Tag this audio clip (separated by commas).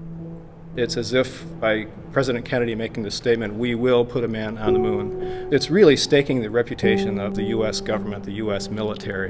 Speech, Music